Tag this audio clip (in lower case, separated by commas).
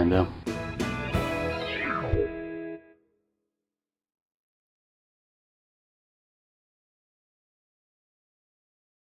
speech, silence, music